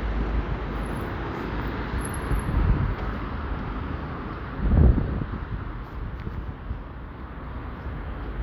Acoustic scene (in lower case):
street